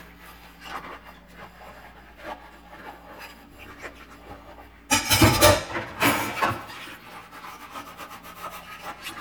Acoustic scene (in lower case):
kitchen